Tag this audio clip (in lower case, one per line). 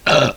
eructation